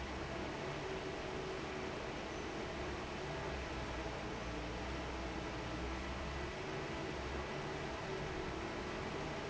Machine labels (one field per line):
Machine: fan